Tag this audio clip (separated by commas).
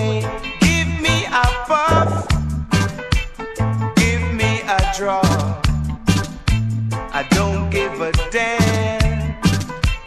Music, Reggae